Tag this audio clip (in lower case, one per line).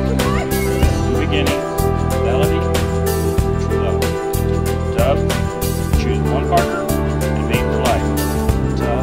speech
music